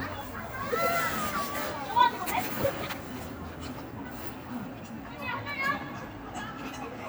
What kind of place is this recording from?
residential area